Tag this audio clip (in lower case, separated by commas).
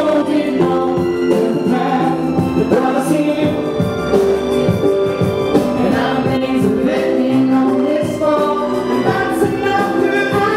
music, singing, male singing